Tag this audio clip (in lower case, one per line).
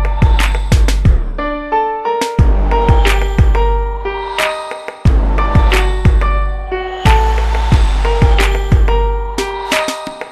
music